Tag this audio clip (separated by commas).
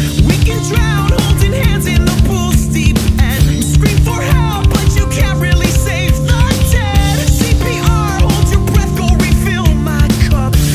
Music